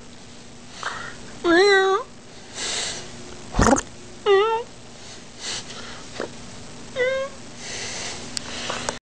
A cat meows and purrs